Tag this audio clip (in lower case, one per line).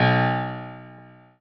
piano
musical instrument
music
keyboard (musical)